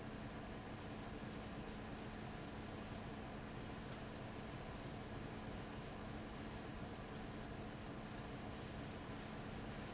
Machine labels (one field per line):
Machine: fan